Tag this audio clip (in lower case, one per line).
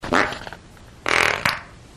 fart